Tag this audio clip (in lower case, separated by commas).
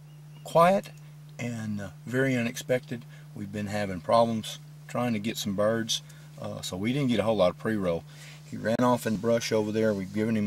speech